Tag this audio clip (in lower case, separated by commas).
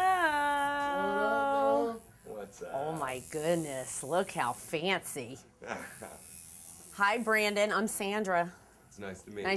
woman speaking